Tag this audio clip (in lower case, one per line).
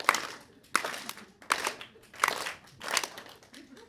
clapping
hands